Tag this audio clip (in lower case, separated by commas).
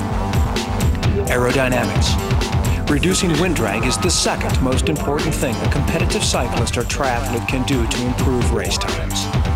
speech, music